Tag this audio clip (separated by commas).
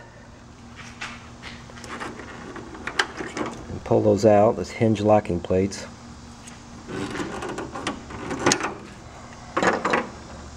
Speech